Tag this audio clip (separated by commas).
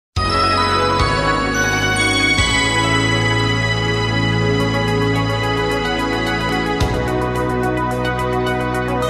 Background music, Music